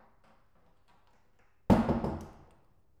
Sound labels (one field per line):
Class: door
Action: closing